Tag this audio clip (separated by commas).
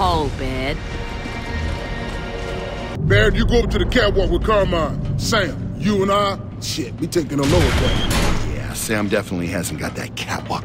Music, Speech